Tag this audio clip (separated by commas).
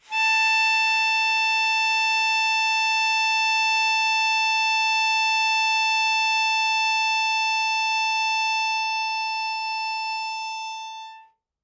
Harmonica, Music, Musical instrument